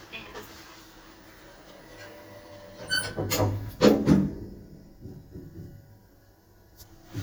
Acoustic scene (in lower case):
elevator